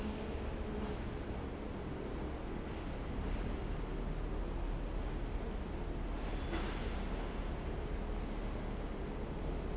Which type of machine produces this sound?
fan